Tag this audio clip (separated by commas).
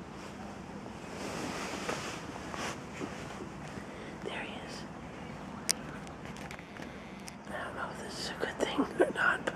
Speech